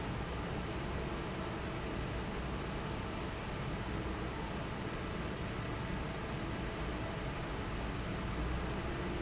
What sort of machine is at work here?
fan